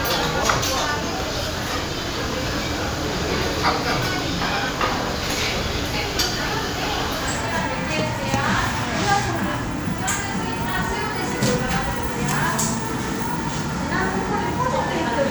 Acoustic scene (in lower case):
crowded indoor space